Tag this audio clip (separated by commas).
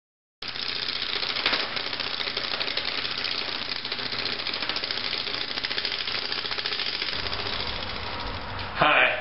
Speech